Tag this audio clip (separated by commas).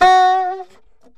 Music, Musical instrument, woodwind instrument